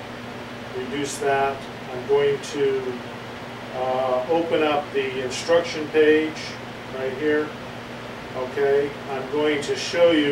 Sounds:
speech

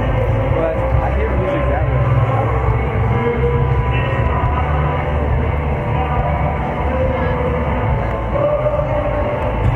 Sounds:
music, speech

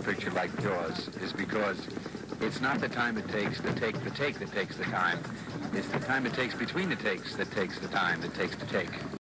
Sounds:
music, speech

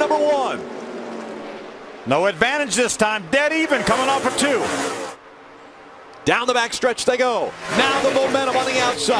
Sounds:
car, speech, vehicle

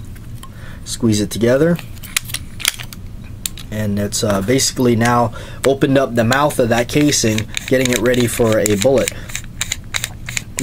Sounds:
tools, inside a small room, speech

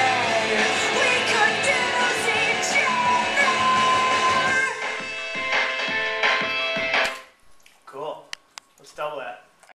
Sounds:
music, speech, writing

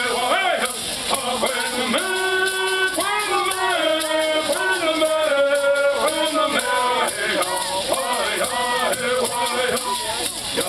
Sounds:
music, female singing, choir, male singing

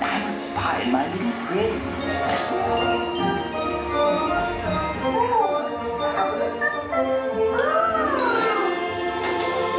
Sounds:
music, speech

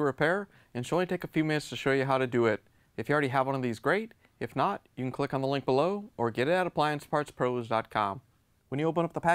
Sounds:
speech

